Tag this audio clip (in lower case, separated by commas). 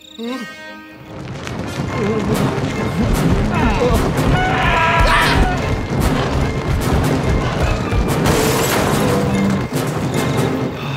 dinosaurs bellowing